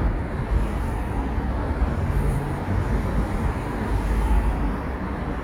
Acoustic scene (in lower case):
street